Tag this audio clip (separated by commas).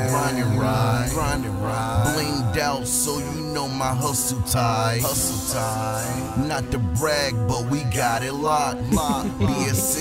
Music, Jazz